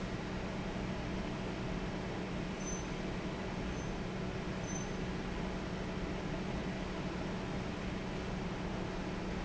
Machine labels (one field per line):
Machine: fan